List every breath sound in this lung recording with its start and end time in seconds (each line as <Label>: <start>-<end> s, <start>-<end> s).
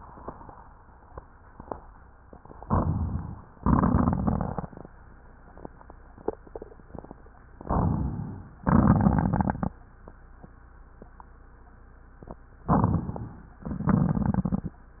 Inhalation: 2.69-3.57 s, 7.58-8.60 s, 12.71-13.62 s
Exhalation: 3.56-4.90 s, 8.64-9.77 s
Crackles: 3.56-4.90 s, 8.64-9.77 s